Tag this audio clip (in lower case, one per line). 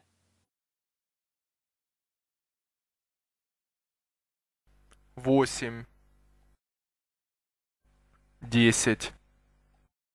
speech